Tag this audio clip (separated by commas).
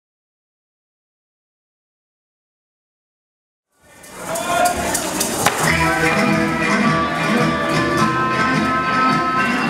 Tambourine, Music, Speech